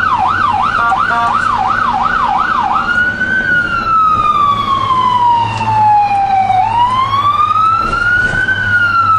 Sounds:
ambulance siren

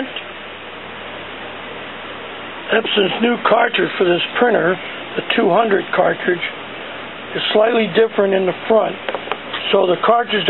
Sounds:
speech

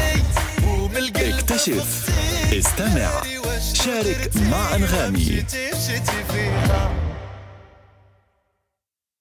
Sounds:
music

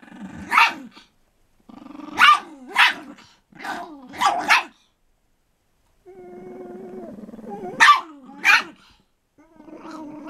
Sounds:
domestic animals
animal
bark
dog barking
dog

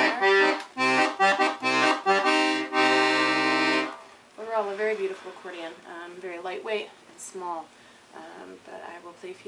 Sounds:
music
speech

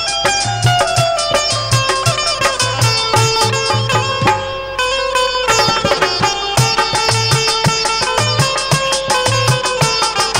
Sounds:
playing sitar

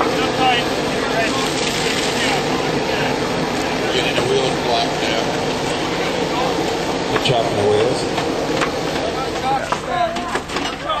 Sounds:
vehicle
speech

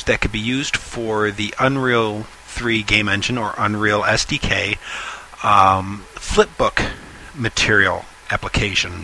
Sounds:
speech

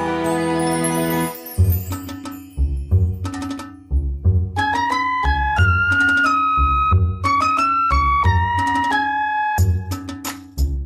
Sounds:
music
video game music

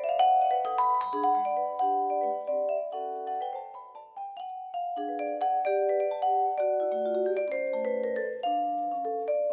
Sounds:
playing vibraphone

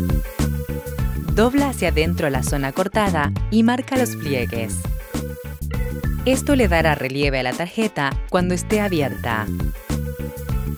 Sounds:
music
speech

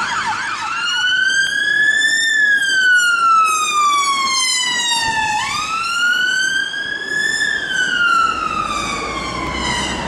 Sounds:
fire truck siren

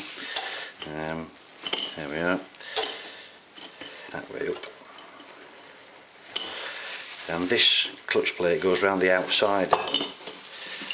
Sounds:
speech

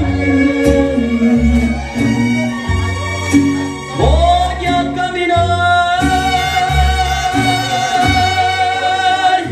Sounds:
inside a large room or hall
music
speech

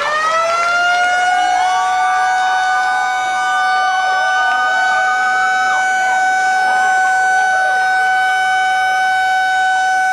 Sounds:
siren

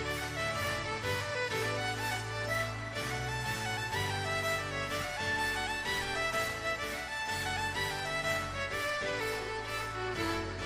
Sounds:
music

